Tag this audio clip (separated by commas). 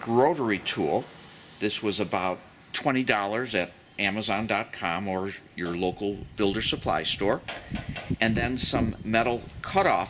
Speech